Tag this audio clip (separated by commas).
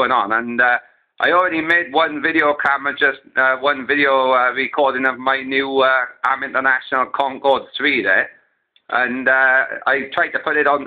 Speech, Radio